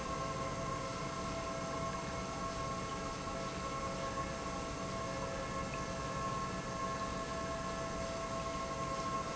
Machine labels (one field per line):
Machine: pump